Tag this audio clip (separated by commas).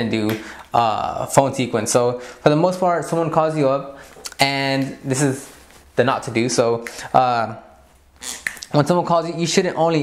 Speech